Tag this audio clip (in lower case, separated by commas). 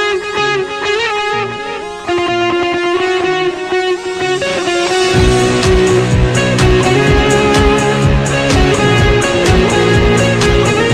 musical instrument, electric guitar, guitar, plucked string instrument, music